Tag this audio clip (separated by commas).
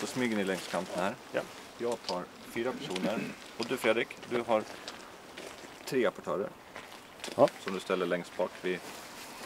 Speech